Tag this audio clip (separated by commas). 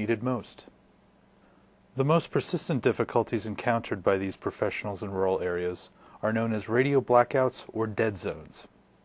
Radio, Speech